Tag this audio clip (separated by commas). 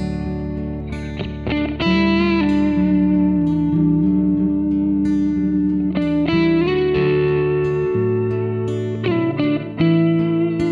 Electric guitar